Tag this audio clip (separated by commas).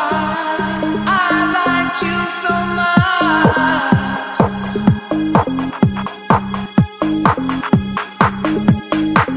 Trance music